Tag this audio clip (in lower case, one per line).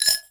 keys jangling
glass
rattle
domestic sounds